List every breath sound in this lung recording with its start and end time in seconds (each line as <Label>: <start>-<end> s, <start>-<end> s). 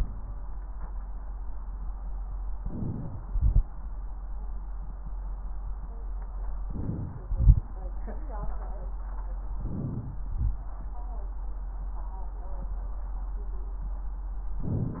Inhalation: 2.54-3.20 s, 6.65-7.23 s, 9.59-10.26 s, 14.62-15.00 s
Exhalation: 3.31-3.59 s, 7.32-7.65 s, 10.31-10.63 s
Crackles: 2.54-3.20 s, 7.31-7.67 s, 14.60-15.00 s